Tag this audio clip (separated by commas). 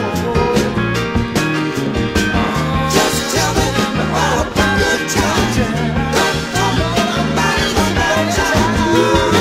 Ska, Music